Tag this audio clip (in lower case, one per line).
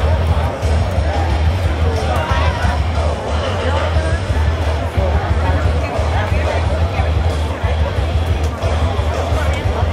music
speech